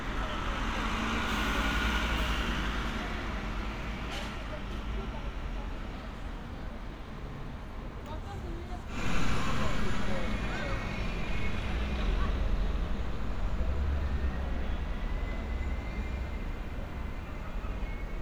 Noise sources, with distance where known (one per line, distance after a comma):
large-sounding engine, near
person or small group talking